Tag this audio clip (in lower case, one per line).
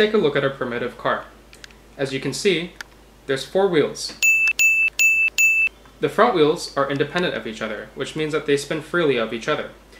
speech